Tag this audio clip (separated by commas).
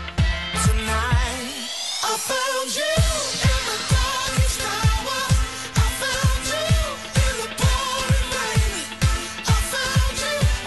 Music